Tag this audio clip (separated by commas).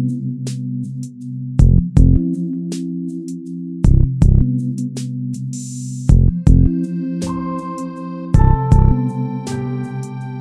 Theme music, Music